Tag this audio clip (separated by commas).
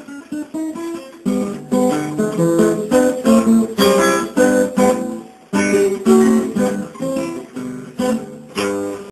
playing acoustic guitar, Acoustic guitar, Guitar, Musical instrument, Music